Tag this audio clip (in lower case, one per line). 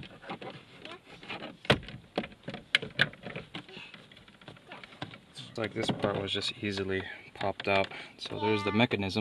speech